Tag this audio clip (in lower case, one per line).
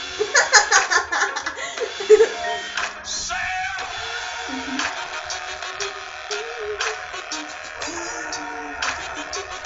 music